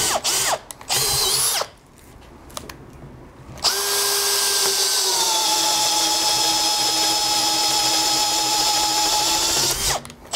A drill works constantly and stopping once